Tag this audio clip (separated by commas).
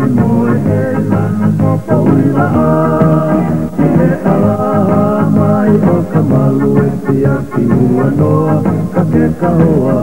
Music